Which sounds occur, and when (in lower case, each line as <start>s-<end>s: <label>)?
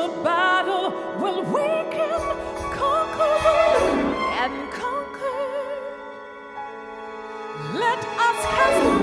0.0s-9.0s: music
7.5s-9.0s: female singing